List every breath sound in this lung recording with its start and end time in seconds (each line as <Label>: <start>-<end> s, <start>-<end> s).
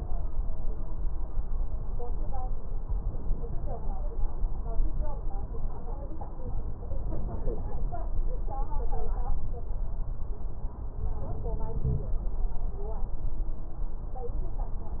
No breath sounds were labelled in this clip.